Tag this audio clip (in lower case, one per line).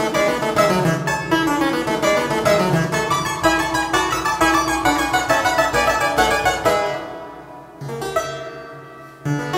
playing harpsichord